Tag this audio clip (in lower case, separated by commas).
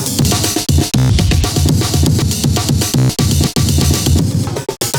drum kit, music, musical instrument, percussion